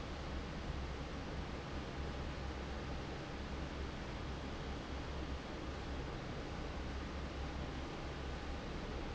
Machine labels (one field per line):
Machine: fan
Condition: normal